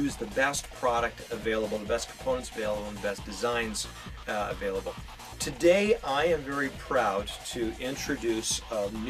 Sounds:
speech, music

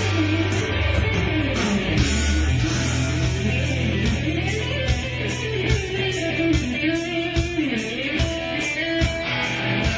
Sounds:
music, blues

